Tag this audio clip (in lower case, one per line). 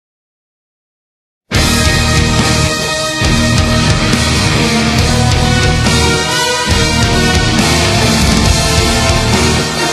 music